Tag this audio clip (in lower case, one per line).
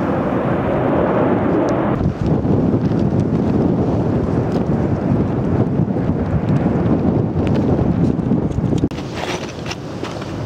volcano explosion